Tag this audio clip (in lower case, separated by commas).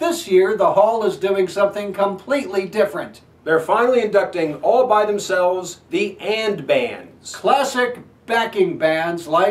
speech